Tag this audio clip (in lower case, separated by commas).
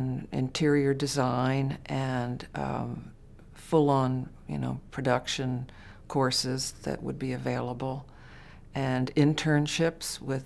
speech, inside a large room or hall